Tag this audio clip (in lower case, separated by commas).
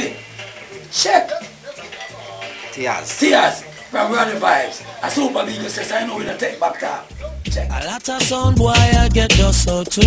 speech, music